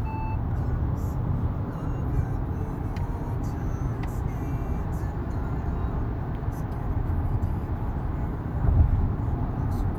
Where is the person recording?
in a car